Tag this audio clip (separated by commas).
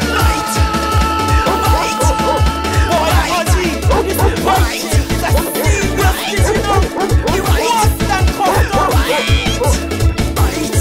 Funk, Music